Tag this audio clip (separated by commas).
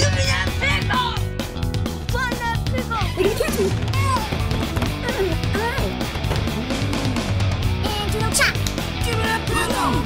Speech, Music